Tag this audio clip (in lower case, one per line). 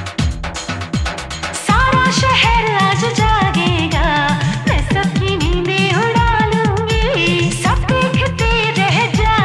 music of bollywood
music